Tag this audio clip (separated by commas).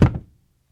thud